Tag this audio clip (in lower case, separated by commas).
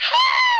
screaming, human voice